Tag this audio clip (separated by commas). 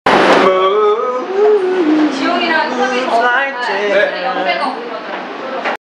Male singing, Speech